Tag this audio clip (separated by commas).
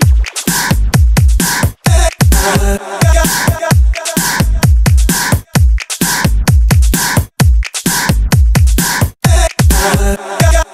Music